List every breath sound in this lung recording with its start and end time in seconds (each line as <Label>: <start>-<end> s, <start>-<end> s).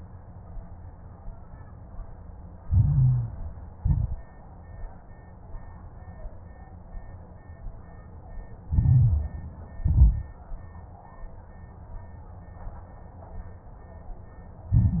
Inhalation: 2.60-3.72 s, 8.64-9.77 s, 14.73-15.00 s
Exhalation: 3.78-4.34 s, 9.79-10.34 s
Crackles: 2.60-3.72 s, 3.78-4.34 s, 8.64-9.77 s, 9.79-10.34 s, 14.73-15.00 s